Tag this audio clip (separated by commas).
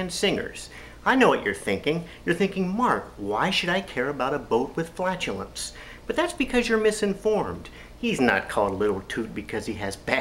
Speech